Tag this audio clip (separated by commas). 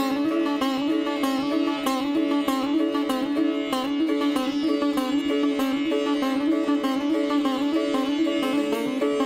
playing sitar